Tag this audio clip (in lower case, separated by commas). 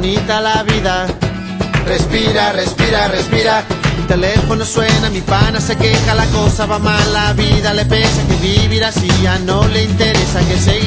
funny music, music